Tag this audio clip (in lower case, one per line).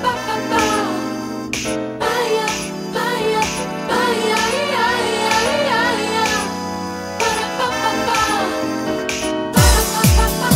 music